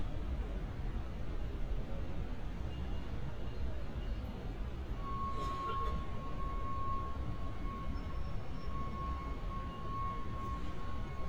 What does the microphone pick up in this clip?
reverse beeper